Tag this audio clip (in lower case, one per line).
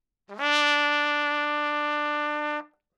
brass instrument
musical instrument
trumpet
music